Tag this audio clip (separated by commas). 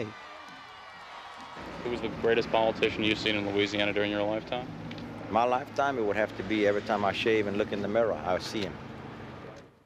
Speech, outside, urban or man-made